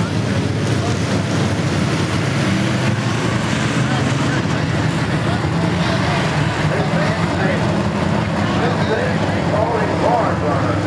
Cars are racing by and a man speaks